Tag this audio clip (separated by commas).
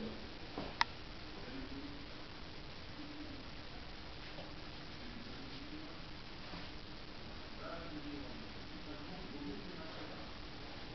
Speech